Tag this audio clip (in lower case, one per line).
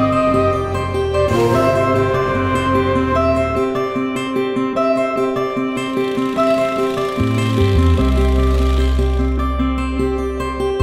music